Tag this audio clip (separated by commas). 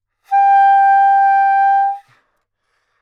Music, woodwind instrument, Musical instrument